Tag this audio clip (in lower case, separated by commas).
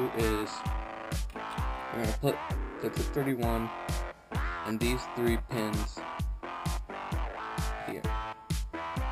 music, speech